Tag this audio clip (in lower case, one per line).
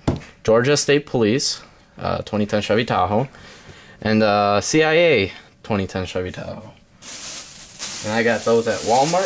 speech